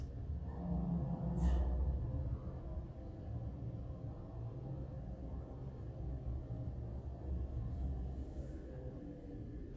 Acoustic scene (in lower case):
elevator